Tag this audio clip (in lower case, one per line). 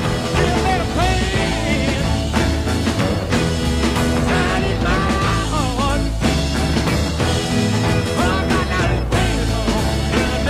music
psychedelic rock